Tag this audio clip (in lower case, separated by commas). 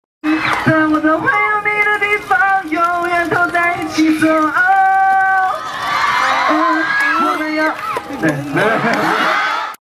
speech, male singing